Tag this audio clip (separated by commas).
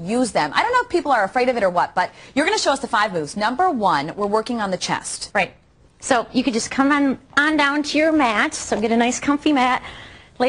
Speech